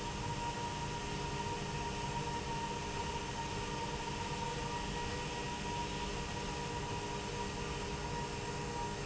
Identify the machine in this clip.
slide rail